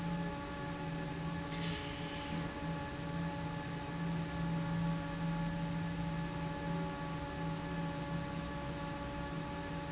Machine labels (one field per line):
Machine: fan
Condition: normal